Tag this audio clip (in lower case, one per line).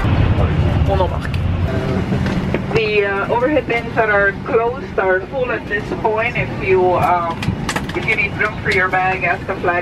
speech